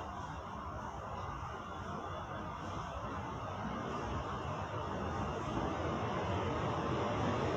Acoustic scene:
subway station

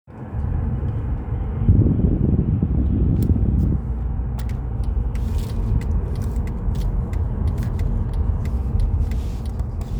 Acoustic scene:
car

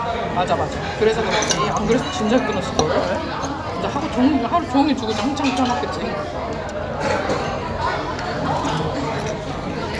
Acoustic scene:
restaurant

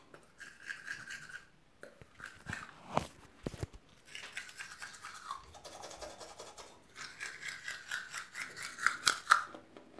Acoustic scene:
restroom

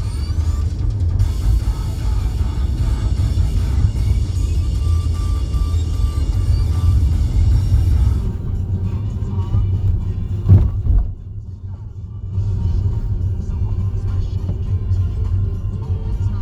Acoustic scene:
car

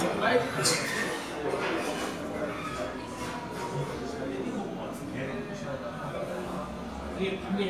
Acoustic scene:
crowded indoor space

